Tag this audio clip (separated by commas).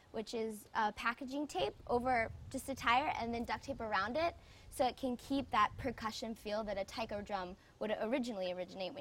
Musical instrument, Bass drum, Speech, Drum